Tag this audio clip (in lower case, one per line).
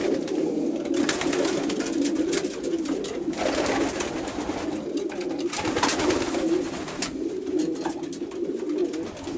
bird
pigeon
inside a small room
dove